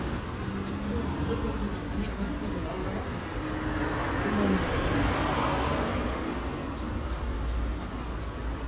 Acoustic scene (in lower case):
street